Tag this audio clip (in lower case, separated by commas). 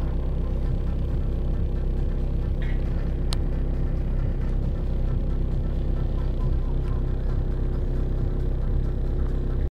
music, vehicle